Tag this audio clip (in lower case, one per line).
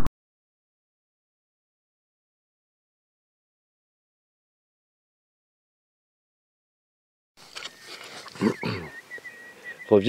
animal
speech